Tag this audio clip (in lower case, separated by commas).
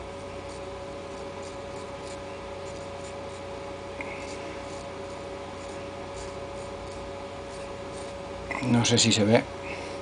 sharpen knife